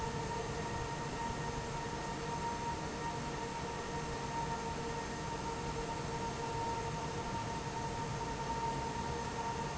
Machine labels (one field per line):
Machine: fan